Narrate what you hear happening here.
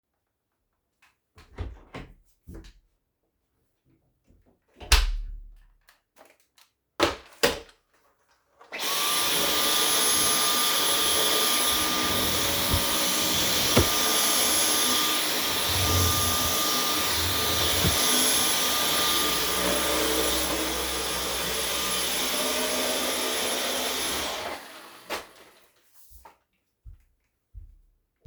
I opened and closed the bedroom door. After that I placed my vacuum cleaner and started vacuum cleaning, while doing so, I opened and closed the drawer 2 times, and finally I stopped vacuum cleaning.